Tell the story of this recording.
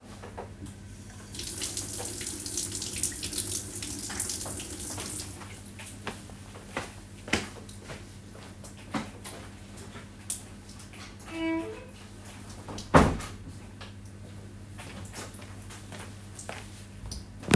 I turned on the faucet and turned it off after a few seconds. Then I walked to the door and openend and closed it. Then I walked back to the faucet.